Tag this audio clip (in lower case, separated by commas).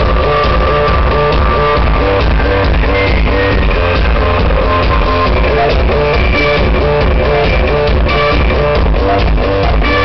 music